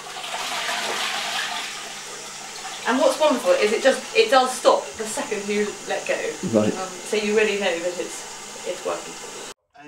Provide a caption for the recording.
A toilet flushing followed by a woman communicating and a man responding